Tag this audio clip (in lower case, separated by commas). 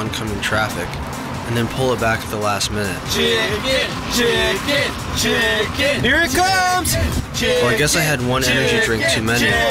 speech, music